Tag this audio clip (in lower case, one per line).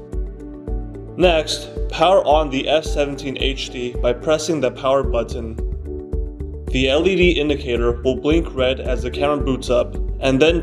music
speech